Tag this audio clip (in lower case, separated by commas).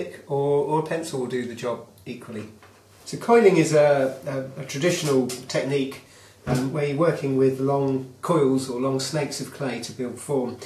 speech